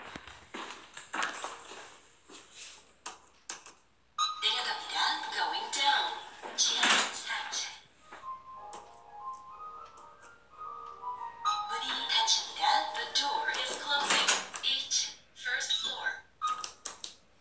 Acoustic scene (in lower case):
elevator